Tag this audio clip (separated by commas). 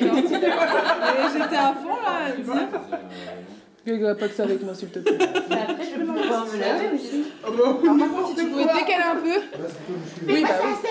Speech